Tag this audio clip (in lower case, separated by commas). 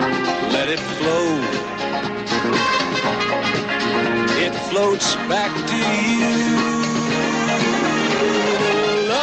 music